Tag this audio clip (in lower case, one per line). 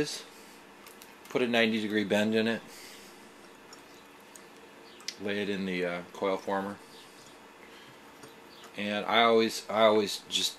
speech